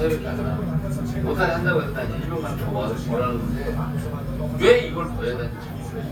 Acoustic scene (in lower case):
restaurant